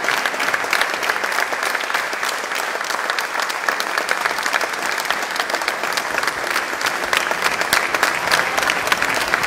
A crowd of people give a round of applause